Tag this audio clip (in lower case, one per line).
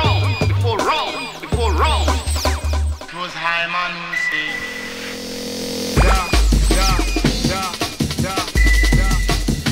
music